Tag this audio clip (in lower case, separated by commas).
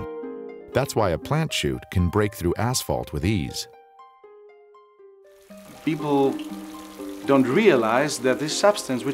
water, music, speech